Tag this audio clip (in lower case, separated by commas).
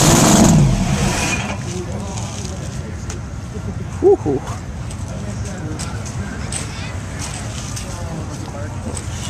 car, vehicle, outside, urban or man-made, speech